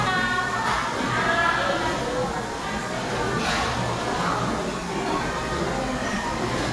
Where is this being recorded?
in a cafe